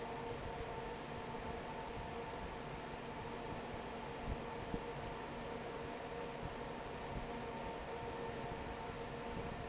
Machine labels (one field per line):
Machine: fan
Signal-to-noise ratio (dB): 6 dB